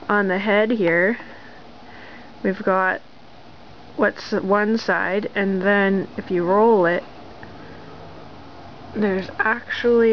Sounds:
speech, inside a small room

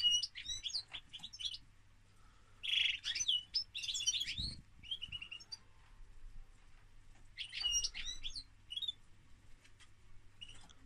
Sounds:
canary calling

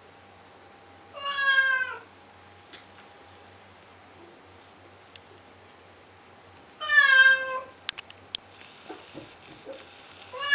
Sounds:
meow, pets, cat, cat meowing, animal

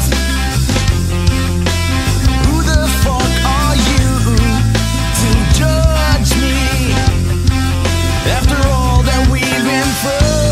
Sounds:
music

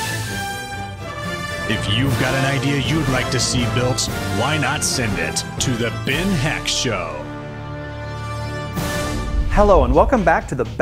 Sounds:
speech, music

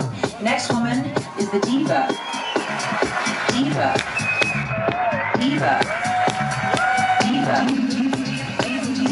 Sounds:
music, speech

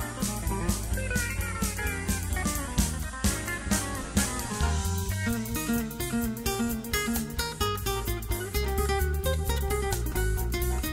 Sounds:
plucked string instrument, music

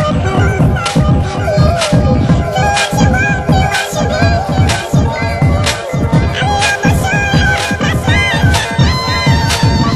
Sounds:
music

